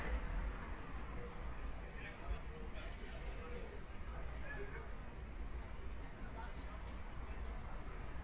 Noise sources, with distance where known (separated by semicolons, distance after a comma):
person or small group talking, far